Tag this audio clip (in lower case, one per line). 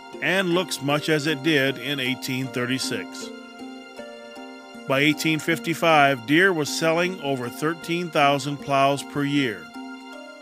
speech
music